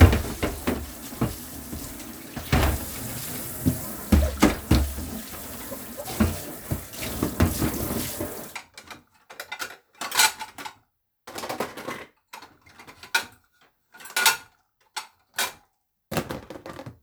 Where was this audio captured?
in a kitchen